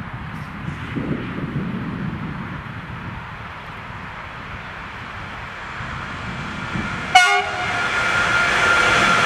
A muffled roar with the sound of the wind, getting louder, then a train horn